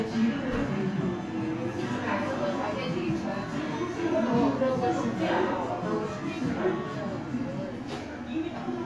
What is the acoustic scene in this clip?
crowded indoor space